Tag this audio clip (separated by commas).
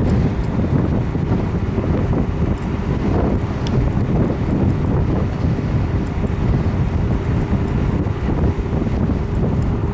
Rain, Thunder, Thunderstorm